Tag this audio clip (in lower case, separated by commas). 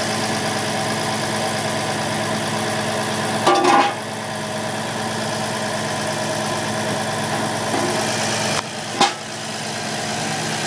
vehicle